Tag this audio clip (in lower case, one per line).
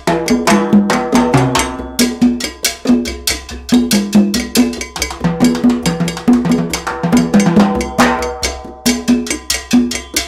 playing timbales